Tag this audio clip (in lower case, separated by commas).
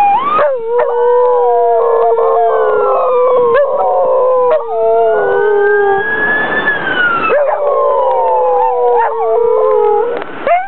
dog howling, police car (siren), siren, emergency vehicle